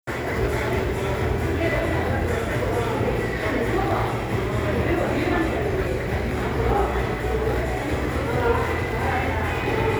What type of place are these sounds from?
crowded indoor space